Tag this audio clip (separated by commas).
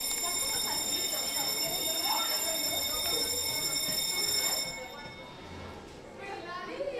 Bell